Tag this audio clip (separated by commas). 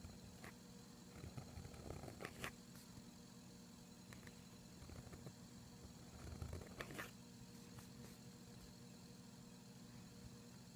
Writing